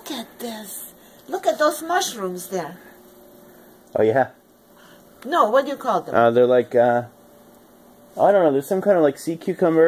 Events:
0.0s-0.2s: female speech
0.0s-9.8s: conversation
0.0s-9.8s: mechanisms
0.4s-0.7s: female speech
0.9s-1.2s: breathing
1.1s-1.3s: footsteps
1.2s-2.8s: female speech
1.5s-1.8s: surface contact
3.4s-3.8s: breathing
3.9s-4.3s: male speech
4.7s-5.1s: breathing
5.2s-5.2s: tick
5.2s-6.1s: female speech
6.1s-7.1s: male speech
8.1s-9.8s: male speech

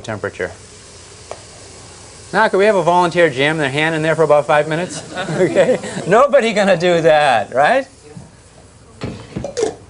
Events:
0.0s-0.5s: man speaking
0.0s-9.8s: steam
2.3s-4.9s: man speaking
4.9s-6.1s: laughter
5.3s-5.8s: man speaking
6.1s-7.8s: man speaking
8.0s-8.3s: man speaking
9.0s-9.3s: thunk
9.4s-9.8s: generic impact sounds

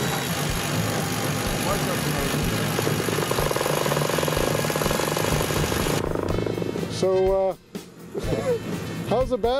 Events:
0.0s-9.5s: mechanisms
6.3s-9.5s: music
7.0s-7.6s: male speech
8.1s-8.7s: male speech
9.1s-9.5s: male speech

